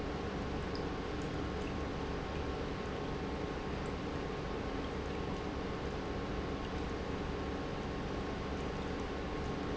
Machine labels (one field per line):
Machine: pump